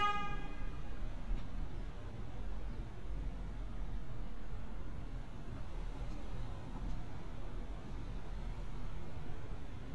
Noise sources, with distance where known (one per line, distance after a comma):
car horn, near